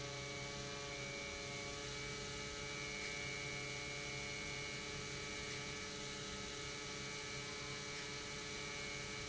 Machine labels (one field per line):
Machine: pump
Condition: normal